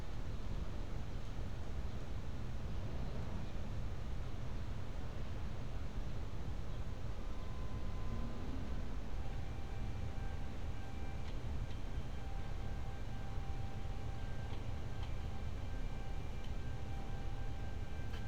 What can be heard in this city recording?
background noise